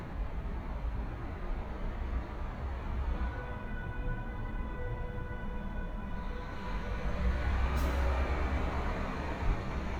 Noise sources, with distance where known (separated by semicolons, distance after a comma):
large-sounding engine, far; car horn, far